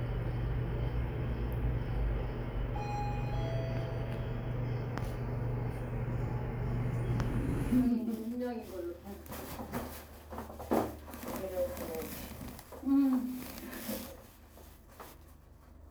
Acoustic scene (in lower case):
elevator